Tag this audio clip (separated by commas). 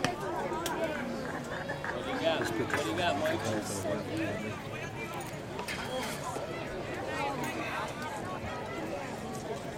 Speech